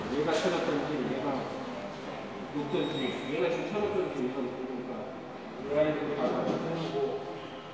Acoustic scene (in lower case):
subway station